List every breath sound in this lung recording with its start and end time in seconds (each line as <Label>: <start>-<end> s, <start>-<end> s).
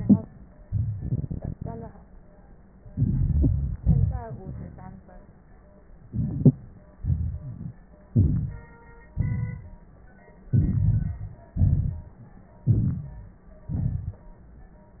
Inhalation: 2.92-3.76 s, 6.11-6.55 s, 8.12-8.65 s, 10.55-11.54 s, 12.66-13.45 s
Exhalation: 3.81-4.99 s, 7.00-7.76 s, 9.15-9.89 s, 11.59-12.26 s, 13.74-14.27 s
Rhonchi: 2.92-3.76 s, 7.00-7.76 s, 8.10-8.63 s, 9.15-9.91 s, 10.51-11.50 s, 11.57-12.26 s, 12.66-13.45 s, 13.72-14.25 s